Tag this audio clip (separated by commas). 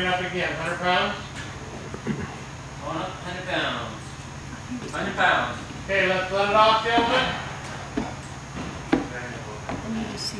Speech